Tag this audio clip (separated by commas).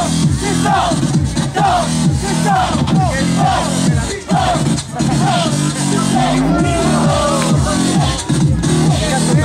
Speech, Music